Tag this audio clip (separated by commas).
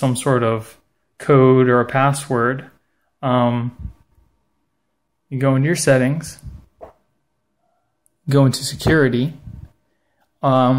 Speech